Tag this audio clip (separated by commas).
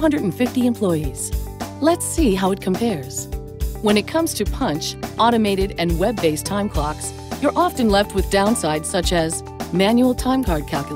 Speech, Music